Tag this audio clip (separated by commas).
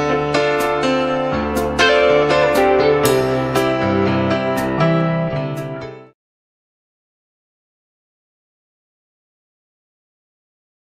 Keyboard (musical)